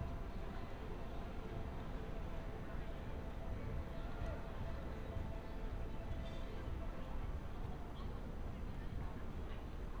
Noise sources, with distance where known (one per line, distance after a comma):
background noise